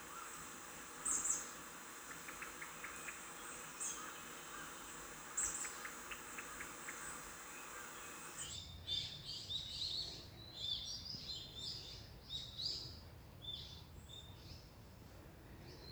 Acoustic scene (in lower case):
park